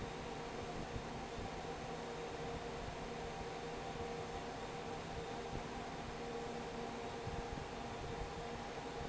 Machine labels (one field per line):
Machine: fan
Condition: normal